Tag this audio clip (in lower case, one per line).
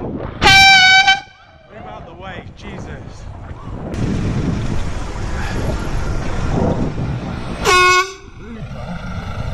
air horn